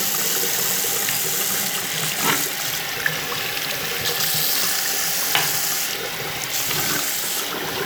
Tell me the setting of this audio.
restroom